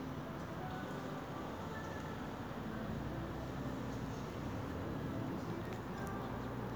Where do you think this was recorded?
on a street